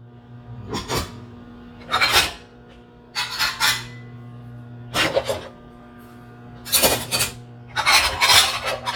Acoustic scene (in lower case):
kitchen